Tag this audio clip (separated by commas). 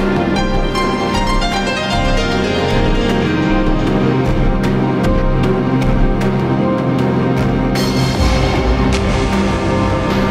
Theme music, Background music